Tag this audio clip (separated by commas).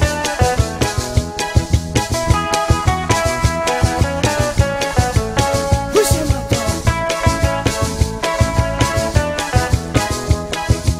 Music, Speech